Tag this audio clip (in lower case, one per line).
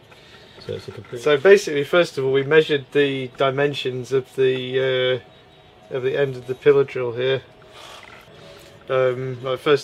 speech